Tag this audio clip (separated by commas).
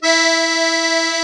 Music, Accordion, Musical instrument